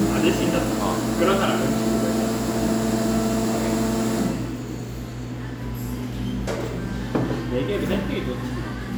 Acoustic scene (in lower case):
cafe